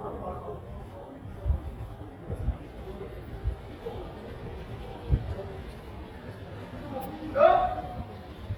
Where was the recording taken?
in a residential area